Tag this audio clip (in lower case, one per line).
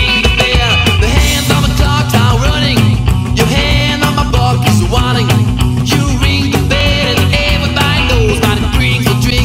music